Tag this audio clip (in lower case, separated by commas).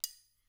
silverware, domestic sounds